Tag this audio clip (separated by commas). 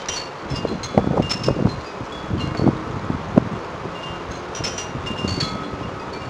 Chime, Bell, Wind, Wind chime